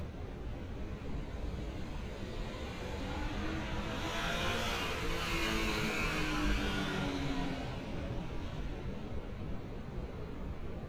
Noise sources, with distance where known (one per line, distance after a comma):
medium-sounding engine, near